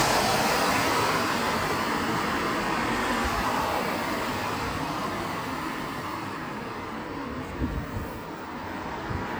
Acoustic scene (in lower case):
street